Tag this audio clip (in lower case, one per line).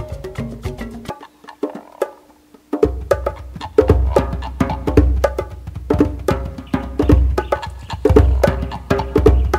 music